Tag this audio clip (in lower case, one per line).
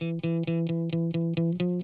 plucked string instrument
music
guitar
electric guitar
musical instrument